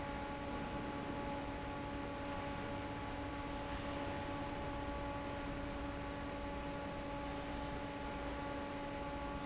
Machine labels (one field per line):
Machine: fan